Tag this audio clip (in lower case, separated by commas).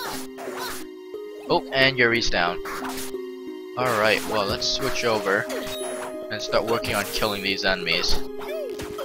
speech, music